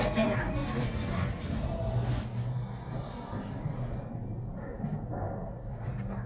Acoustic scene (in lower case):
elevator